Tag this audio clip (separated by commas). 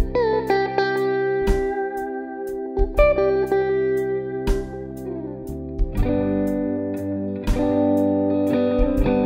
Music, Guitar, Electric guitar, Plucked string instrument, Musical instrument